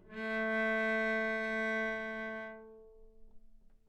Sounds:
Musical instrument, Music, Bowed string instrument

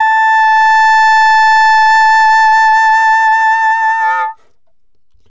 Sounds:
Music, Wind instrument, Musical instrument

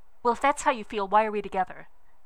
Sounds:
Female speech, Speech, Human voice

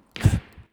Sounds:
Breathing, Respiratory sounds

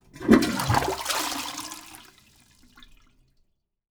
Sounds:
home sounds, Toilet flush

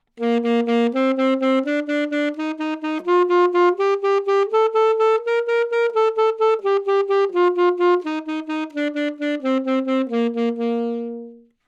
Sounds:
Music, Musical instrument, woodwind instrument

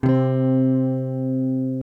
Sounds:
Musical instrument, Music, Guitar, Electric guitar, Plucked string instrument, Strum

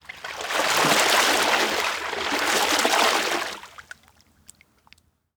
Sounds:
Liquid, Water, Splash

